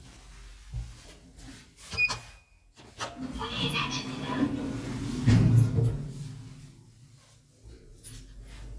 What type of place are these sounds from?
elevator